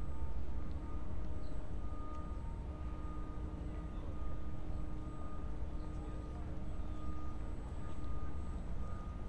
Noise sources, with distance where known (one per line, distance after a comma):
person or small group talking